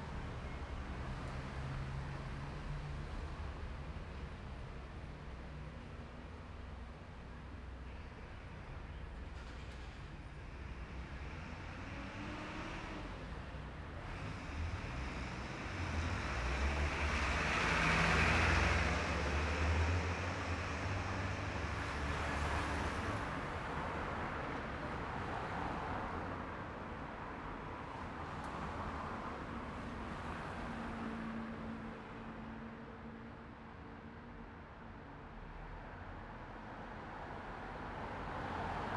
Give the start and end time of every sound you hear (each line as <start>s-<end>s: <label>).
0.0s-0.5s: car engine idling
0.0s-2.5s: car
0.5s-2.5s: car engine accelerating
11.3s-22.0s: car engine accelerating
11.3s-39.0s: car
22.2s-24.2s: car engine accelerating
23.5s-39.0s: car wheels rolling
30.4s-33.7s: car engine accelerating